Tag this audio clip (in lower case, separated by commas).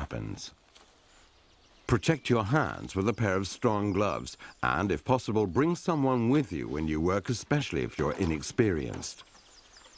speech